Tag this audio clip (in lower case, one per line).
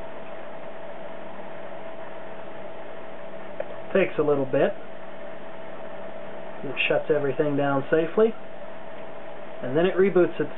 inside a small room
speech